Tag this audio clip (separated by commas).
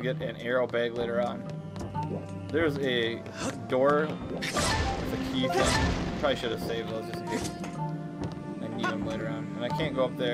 Speech, Music